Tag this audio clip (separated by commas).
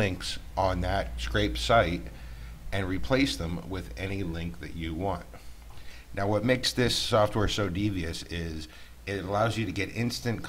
Speech